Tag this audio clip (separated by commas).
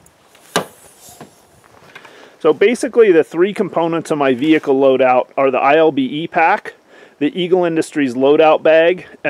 Speech